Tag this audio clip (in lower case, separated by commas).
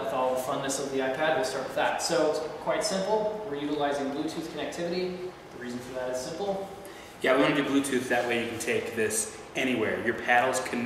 speech